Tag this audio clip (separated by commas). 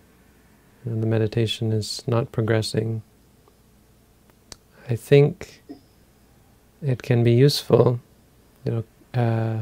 Speech